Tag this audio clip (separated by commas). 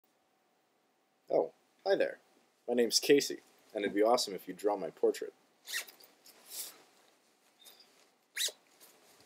inside a small room, Speech